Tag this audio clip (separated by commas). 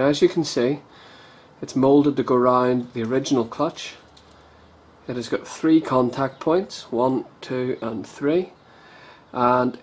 Speech